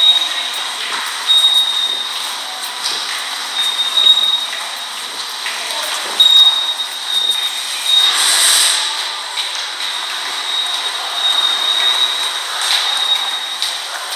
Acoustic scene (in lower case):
subway station